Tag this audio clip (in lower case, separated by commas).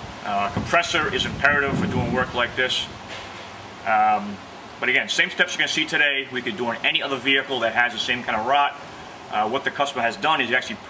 speech